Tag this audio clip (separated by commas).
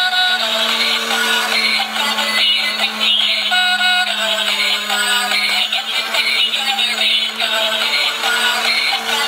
Music